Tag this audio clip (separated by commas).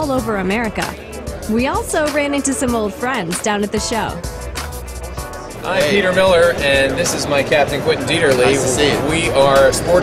Speech, Music